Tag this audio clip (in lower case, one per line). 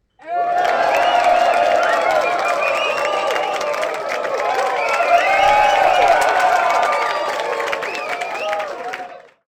applause
crowd
human group actions
cheering